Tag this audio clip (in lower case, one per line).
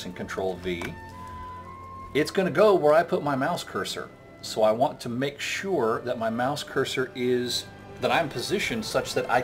speech